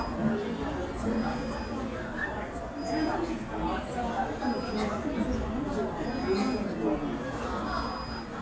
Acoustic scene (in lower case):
crowded indoor space